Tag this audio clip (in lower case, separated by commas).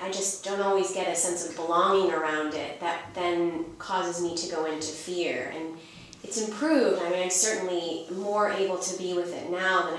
speech